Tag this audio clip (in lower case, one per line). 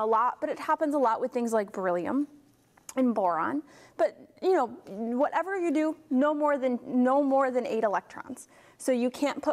speech